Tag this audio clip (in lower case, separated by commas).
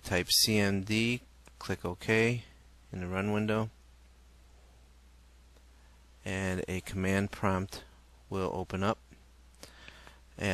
speech